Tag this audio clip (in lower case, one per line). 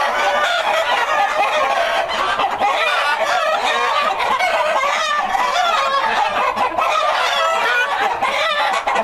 fowl
cluck
rooster
chicken clucking